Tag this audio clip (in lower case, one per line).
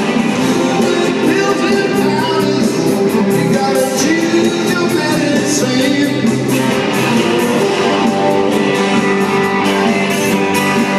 music